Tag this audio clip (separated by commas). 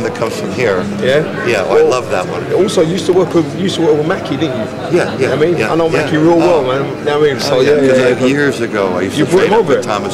Speech